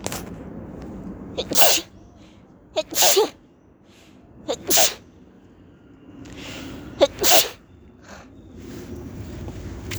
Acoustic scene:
park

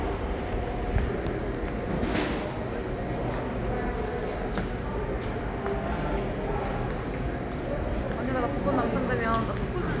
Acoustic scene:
subway station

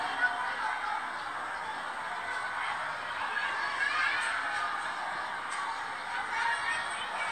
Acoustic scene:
residential area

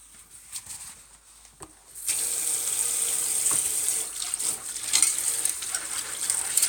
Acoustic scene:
kitchen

